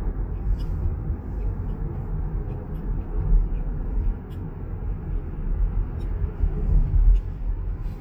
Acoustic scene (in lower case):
car